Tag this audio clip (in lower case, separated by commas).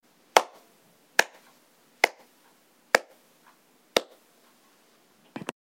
clapping, hands